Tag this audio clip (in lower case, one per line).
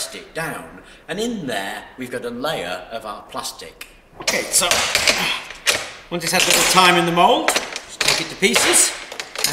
speech
inside a small room